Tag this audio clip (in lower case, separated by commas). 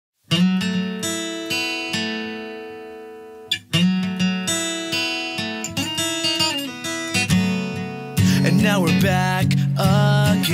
strum